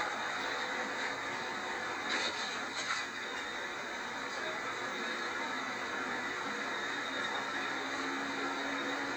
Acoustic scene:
bus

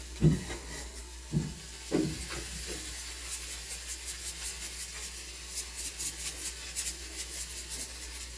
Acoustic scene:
kitchen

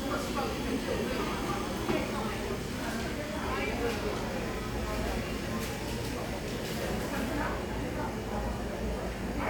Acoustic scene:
crowded indoor space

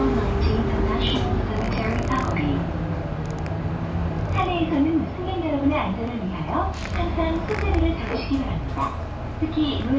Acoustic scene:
bus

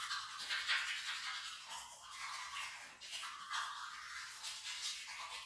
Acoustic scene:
restroom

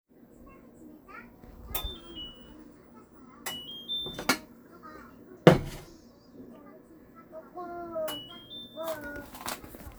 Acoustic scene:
kitchen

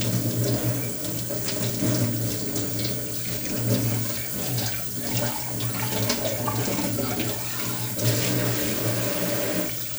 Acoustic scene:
kitchen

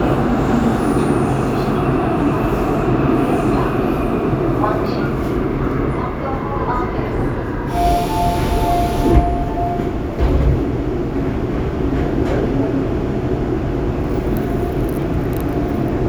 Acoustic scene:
subway train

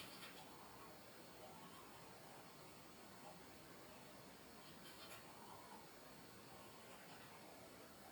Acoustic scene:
restroom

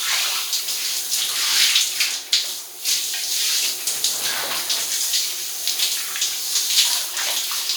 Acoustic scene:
restroom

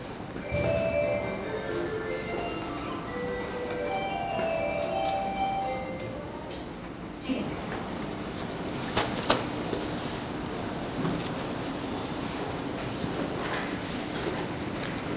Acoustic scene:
subway station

